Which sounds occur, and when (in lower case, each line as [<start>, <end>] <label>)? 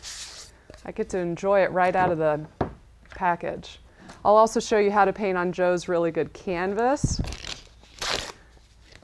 [0.00, 0.47] surface contact
[0.00, 9.03] mechanisms
[0.65, 0.79] generic impact sounds
[0.80, 2.45] female speech
[1.87, 2.13] generic impact sounds
[2.56, 2.75] tap
[3.08, 3.16] generic impact sounds
[3.15, 3.62] female speech
[3.82, 4.18] surface contact
[4.01, 4.13] generic impact sounds
[4.21, 7.28] female speech
[6.52, 6.79] generic impact sounds
[7.17, 7.56] tearing
[7.50, 8.00] surface contact
[7.98, 8.34] tearing
[8.31, 8.59] breathing
[8.48, 8.64] generic impact sounds
[8.60, 8.90] surface contact
[8.85, 9.03] tap